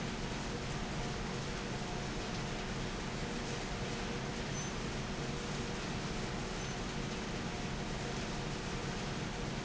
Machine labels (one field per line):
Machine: fan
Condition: abnormal